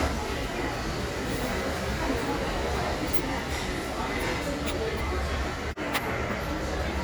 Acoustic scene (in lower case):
restaurant